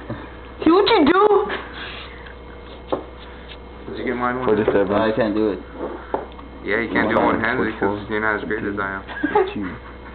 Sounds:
inside a small room, Speech

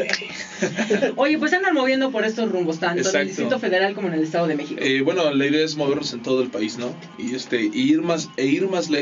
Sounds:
Radio, Music, Speech

